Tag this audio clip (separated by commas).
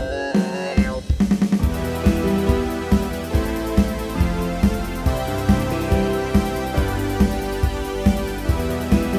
playing synthesizer